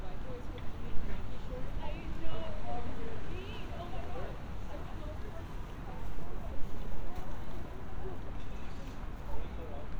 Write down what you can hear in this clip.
medium-sounding engine, person or small group talking